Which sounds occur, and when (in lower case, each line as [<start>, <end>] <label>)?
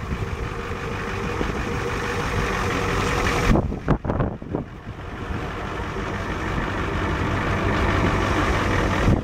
[0.00, 0.49] wind noise (microphone)
[0.00, 9.23] medium engine (mid frequency)
[0.00, 9.23] wind
[1.30, 1.56] wind noise (microphone)
[3.43, 4.96] wind noise (microphone)